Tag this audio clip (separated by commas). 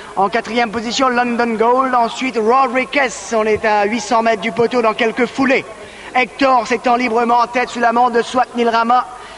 Speech